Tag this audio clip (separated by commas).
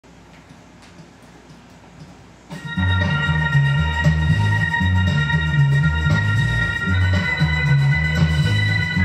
Bass guitar, Plucked string instrument, Musical instrument, Guitar, Music